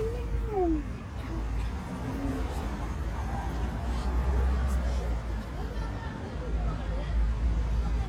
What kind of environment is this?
residential area